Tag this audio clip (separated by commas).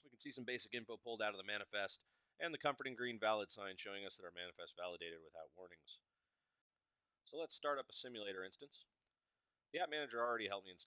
Speech